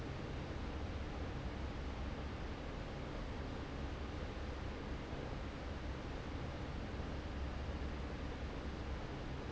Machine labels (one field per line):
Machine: fan